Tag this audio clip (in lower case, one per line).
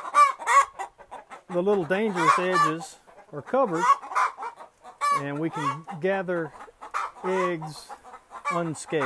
chicken
cluck
fowl